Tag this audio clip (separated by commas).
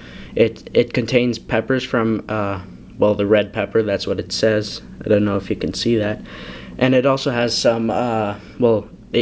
Speech